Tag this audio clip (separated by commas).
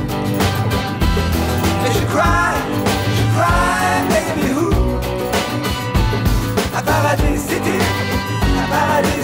Music